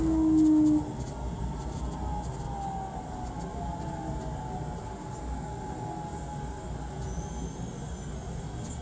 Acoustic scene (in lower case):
subway train